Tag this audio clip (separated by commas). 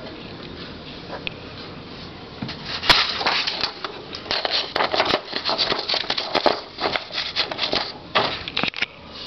Typewriter